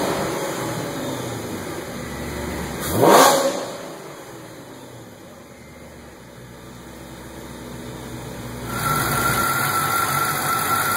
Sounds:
medium engine (mid frequency)
vehicle

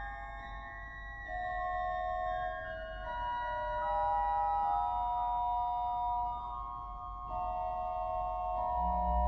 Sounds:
musical instrument
music
organ
keyboard (musical)

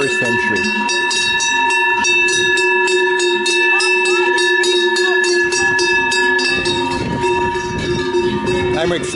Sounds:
bovinae cowbell

